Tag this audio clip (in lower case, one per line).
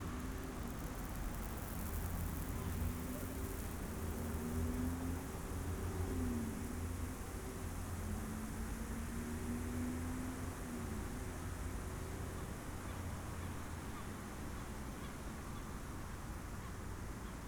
wild animals
animal
bird
seagull